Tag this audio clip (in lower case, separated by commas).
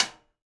music, drum, musical instrument, snare drum, percussion